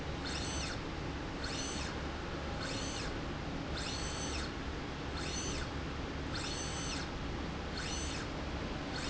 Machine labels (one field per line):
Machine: slide rail